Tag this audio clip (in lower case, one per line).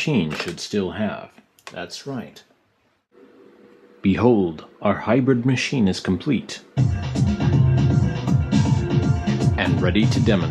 drum machine
music
speech